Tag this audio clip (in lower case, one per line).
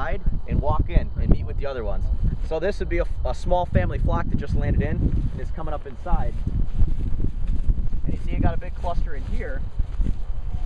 speech